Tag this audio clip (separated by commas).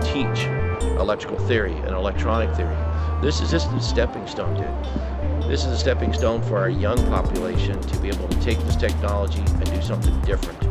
Speech, Music